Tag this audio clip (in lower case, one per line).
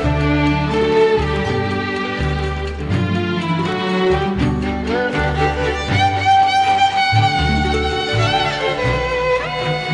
music